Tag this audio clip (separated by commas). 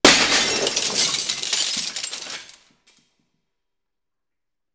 Shatter, Glass